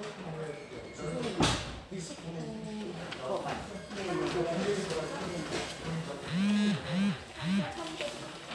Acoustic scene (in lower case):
crowded indoor space